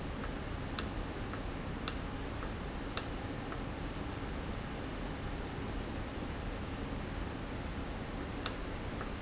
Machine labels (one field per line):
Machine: valve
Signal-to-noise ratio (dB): -6 dB